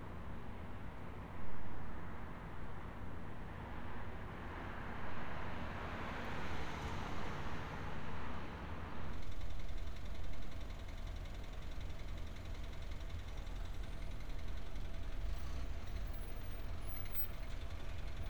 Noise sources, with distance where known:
engine of unclear size

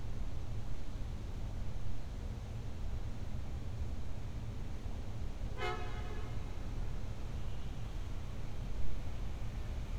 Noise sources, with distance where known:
car horn, near

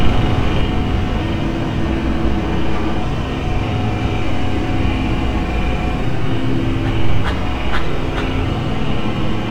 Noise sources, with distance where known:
large-sounding engine, near

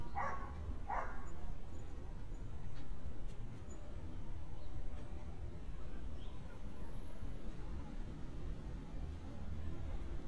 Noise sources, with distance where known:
person or small group talking, far; dog barking or whining, near

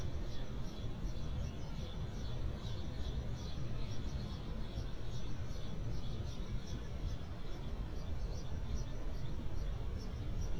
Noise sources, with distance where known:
background noise

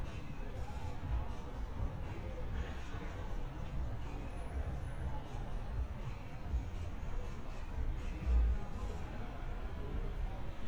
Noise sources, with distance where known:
music from an unclear source

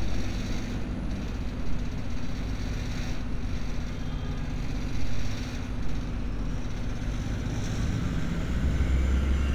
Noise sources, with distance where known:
engine of unclear size, near

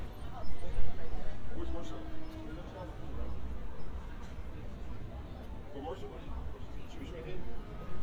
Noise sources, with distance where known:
person or small group talking, near

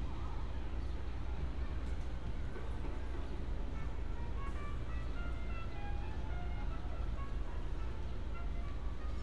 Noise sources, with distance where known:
music from a fixed source, far

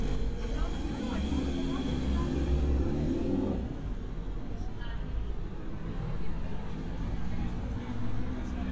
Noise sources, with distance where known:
medium-sounding engine, near; person or small group talking

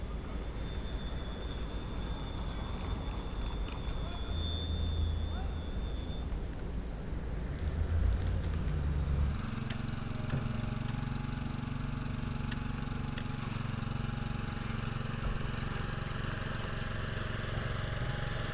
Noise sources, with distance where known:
engine of unclear size

